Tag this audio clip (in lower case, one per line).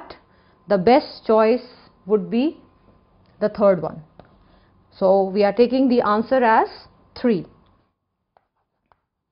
speech
inside a small room